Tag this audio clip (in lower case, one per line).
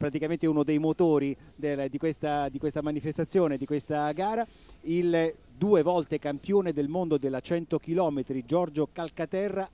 outside, rural or natural
speech